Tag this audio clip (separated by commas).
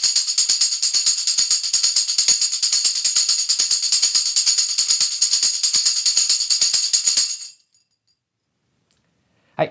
playing tambourine